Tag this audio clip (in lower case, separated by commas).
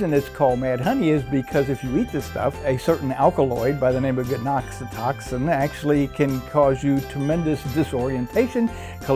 music, speech